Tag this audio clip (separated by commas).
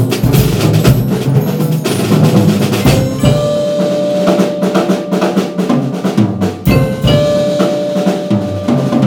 Bass drum, Drum kit, Glockenspiel, Mallet percussion, Marimba, Drum roll, Percussion, Snare drum, Drum, Rimshot